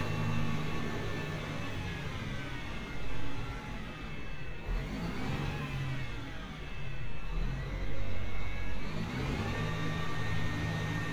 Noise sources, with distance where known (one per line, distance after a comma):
unidentified powered saw